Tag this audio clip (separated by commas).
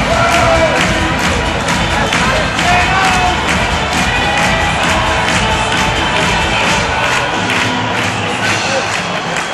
Music, Speech